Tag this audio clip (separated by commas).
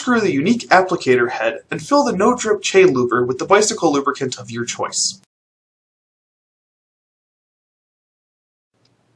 Speech